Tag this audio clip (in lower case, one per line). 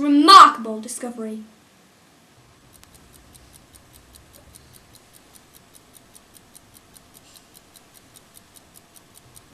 speech